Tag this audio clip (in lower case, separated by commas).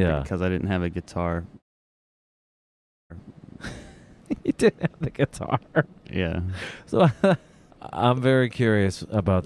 speech